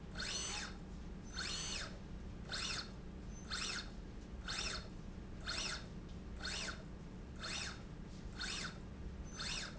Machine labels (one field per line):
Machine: slide rail